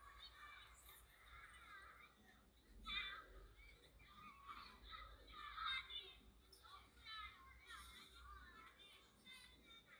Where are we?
in a residential area